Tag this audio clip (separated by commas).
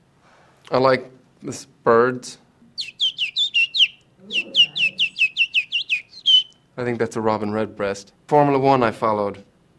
Bird, bird song, tweet